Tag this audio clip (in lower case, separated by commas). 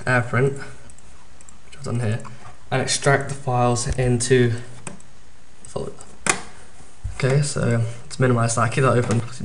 speech